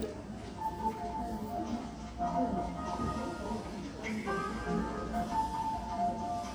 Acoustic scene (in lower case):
cafe